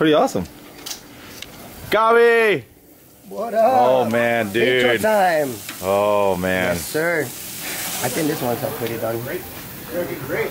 Men speaking with the sizzle of food cooking in the background